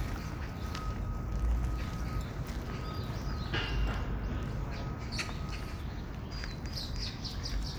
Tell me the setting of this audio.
park